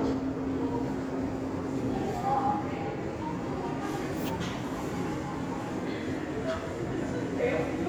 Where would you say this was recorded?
in a subway station